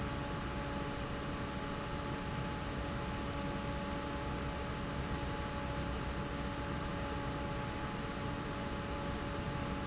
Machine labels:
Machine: fan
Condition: normal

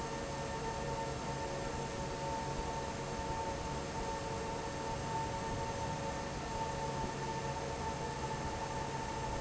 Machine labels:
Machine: fan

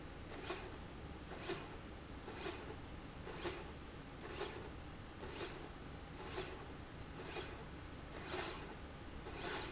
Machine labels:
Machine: slide rail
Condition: normal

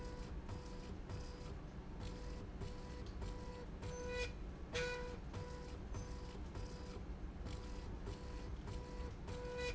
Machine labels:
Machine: slide rail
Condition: normal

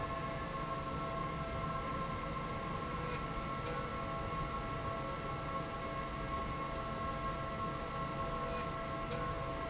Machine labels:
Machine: slide rail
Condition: normal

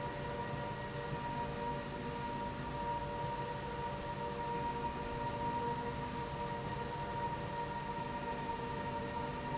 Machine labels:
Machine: slide rail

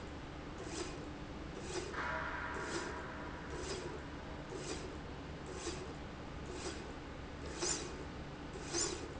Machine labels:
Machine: slide rail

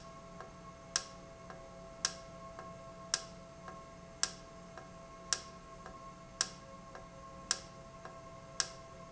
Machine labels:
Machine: valve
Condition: normal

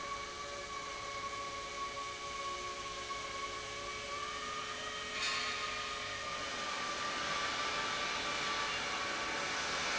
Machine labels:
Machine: pump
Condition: normal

